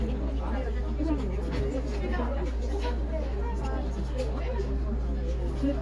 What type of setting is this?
crowded indoor space